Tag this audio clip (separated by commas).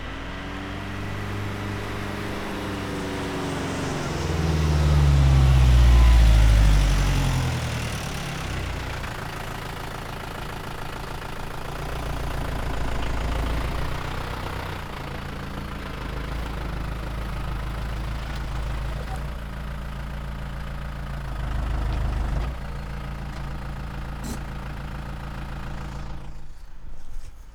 Truck, Engine, Vehicle, Idling, Motor vehicle (road)